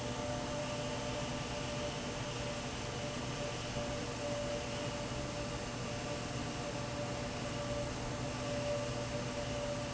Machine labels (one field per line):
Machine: fan